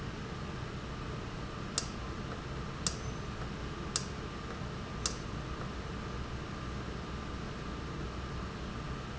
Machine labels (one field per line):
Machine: valve